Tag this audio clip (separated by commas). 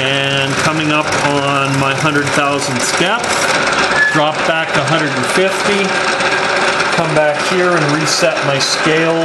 inside a large room or hall, Speech